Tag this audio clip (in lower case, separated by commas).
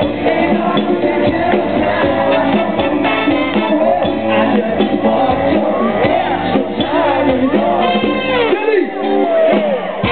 speech, music